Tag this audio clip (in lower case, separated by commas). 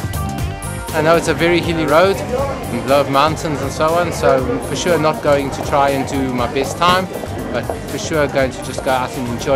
inside a large room or hall, music, speech